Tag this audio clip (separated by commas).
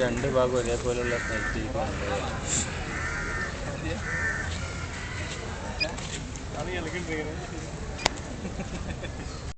Speech